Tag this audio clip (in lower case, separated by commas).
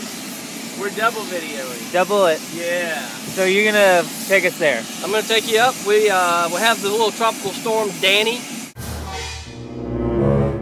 outside, urban or man-made, speech, music